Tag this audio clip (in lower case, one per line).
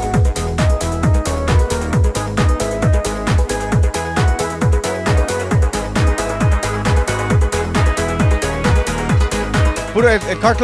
trance music